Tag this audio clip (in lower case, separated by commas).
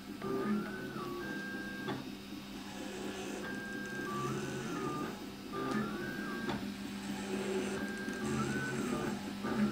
printer printing